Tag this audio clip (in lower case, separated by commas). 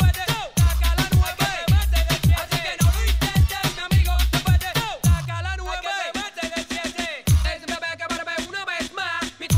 music